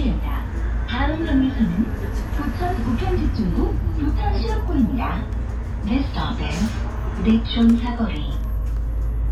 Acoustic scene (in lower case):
bus